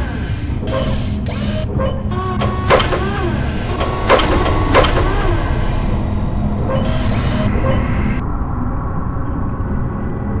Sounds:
inside a small room

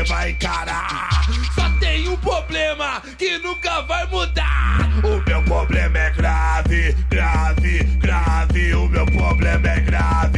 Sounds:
music

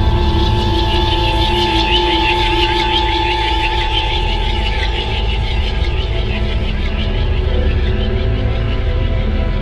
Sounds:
music

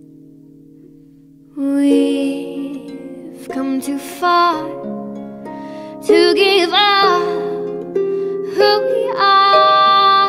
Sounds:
music
plucked string instrument
singing

